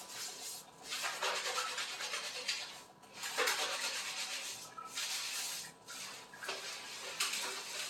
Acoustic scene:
restroom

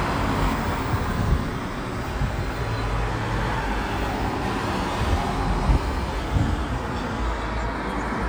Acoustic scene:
street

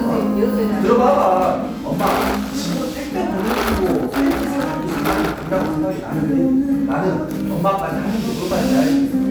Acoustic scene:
cafe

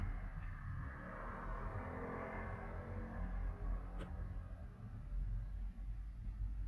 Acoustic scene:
residential area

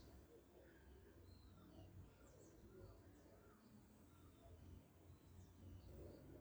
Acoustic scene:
park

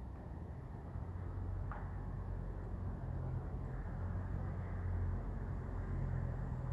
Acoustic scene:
residential area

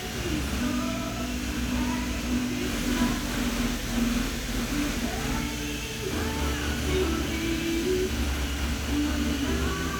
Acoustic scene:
cafe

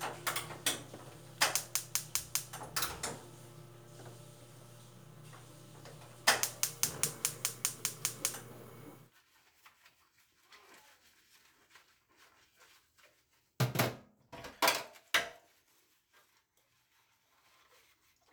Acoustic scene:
kitchen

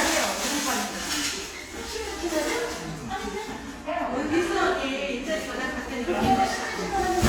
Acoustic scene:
crowded indoor space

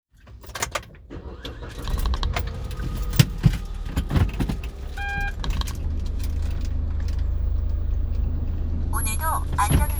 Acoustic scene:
car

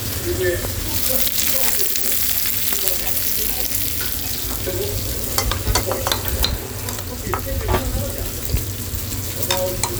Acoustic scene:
restaurant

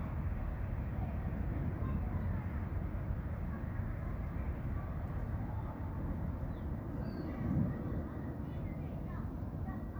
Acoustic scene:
residential area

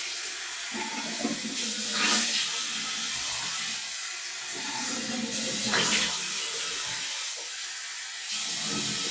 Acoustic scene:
restroom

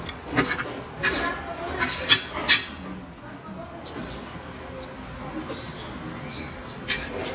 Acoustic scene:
restaurant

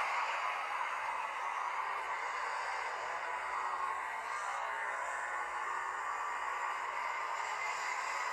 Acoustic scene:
street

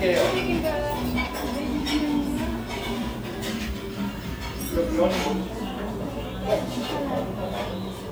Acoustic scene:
restaurant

